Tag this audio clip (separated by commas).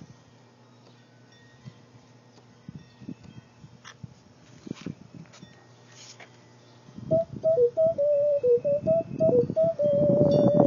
Music, Electronic organ